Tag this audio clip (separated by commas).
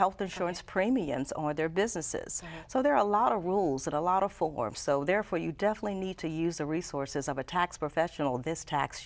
Speech